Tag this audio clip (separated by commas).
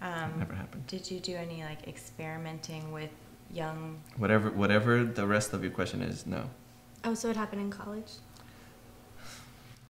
Speech